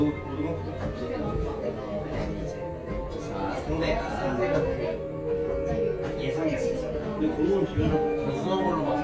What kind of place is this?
crowded indoor space